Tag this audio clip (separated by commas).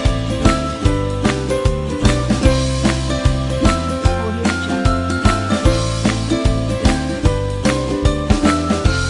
Speech, Music